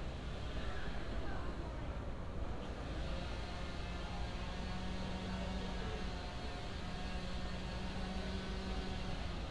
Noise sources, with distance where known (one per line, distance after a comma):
unidentified powered saw, far